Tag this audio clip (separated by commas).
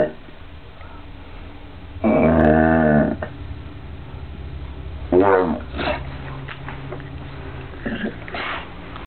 Whimper (dog), Domestic animals, Animal, Dog